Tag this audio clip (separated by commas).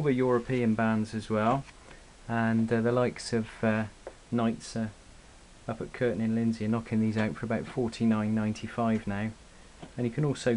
Speech